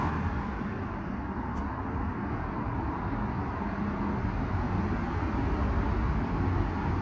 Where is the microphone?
on a street